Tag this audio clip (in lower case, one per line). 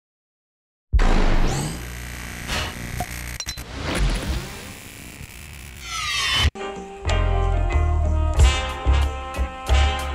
music